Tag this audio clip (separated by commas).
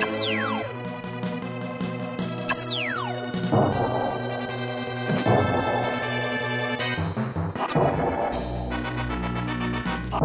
Music